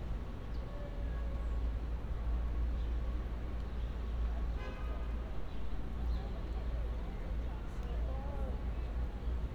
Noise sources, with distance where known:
medium-sounding engine
car horn
person or small group talking

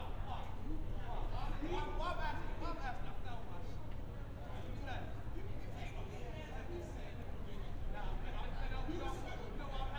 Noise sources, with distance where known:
person or small group talking, near
person or small group shouting

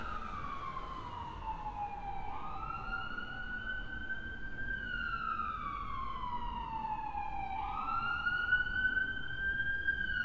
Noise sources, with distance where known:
siren

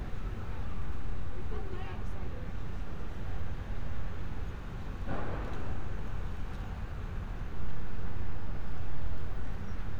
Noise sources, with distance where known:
person or small group talking, far

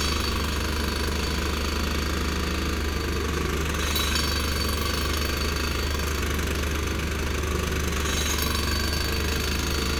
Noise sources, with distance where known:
jackhammer, near

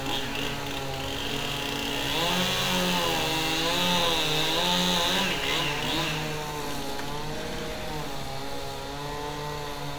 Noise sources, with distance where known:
small or medium rotating saw, near
large rotating saw, near
unidentified powered saw, near

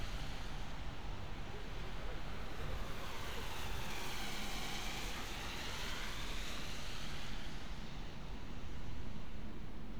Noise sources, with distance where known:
medium-sounding engine, far

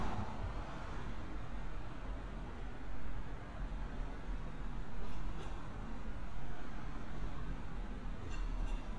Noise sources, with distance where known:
background noise

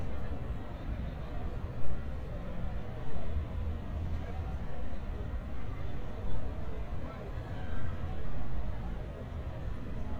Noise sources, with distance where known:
person or small group talking, far

